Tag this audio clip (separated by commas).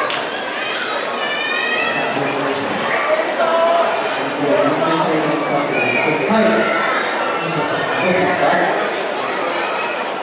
Speech